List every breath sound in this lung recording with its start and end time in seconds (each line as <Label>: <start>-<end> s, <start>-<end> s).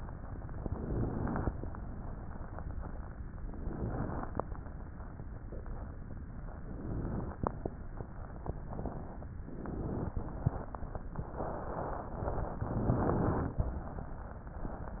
Inhalation: 0.54-1.52 s, 3.42-4.40 s, 6.67-7.66 s, 9.43-10.15 s, 12.69-13.57 s